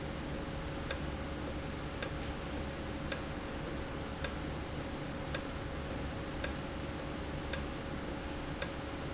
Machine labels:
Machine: valve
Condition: normal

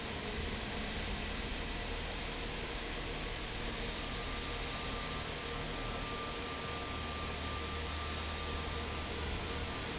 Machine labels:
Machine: fan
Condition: normal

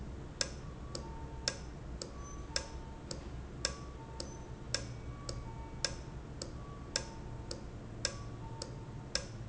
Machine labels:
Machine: valve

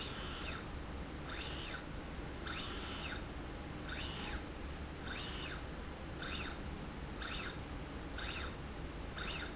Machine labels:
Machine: slide rail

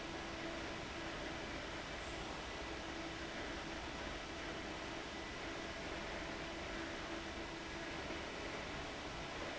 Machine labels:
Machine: fan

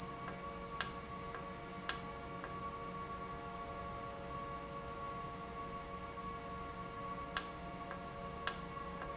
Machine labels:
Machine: valve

